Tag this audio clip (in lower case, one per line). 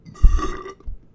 eructation